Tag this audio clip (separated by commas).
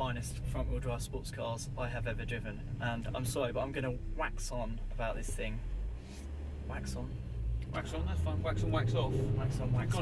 Vehicle, Speech